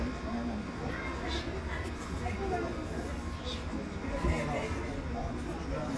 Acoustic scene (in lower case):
residential area